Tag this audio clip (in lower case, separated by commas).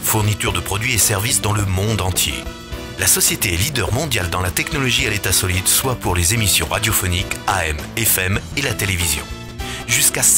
speech, music